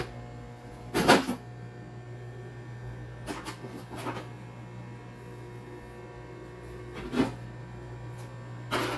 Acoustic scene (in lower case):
kitchen